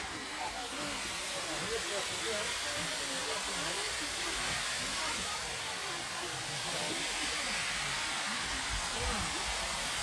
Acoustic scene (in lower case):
park